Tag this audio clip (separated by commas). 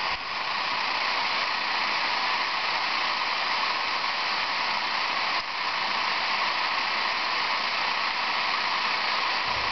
Radio